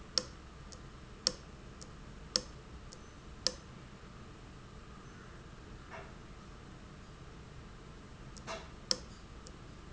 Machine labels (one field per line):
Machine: valve